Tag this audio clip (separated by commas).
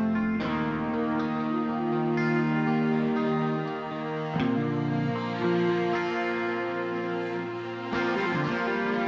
Music